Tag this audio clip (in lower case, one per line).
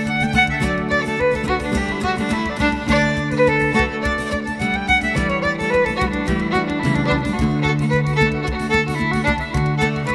bowed string instrument
violin